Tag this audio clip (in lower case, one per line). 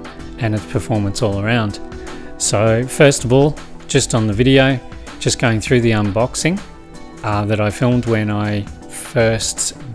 music
speech